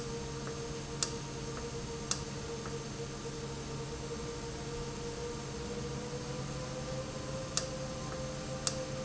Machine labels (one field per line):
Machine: valve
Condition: normal